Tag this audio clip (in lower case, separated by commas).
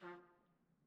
musical instrument, music, brass instrument, trumpet